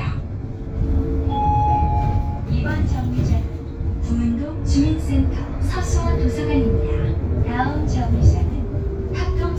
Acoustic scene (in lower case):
bus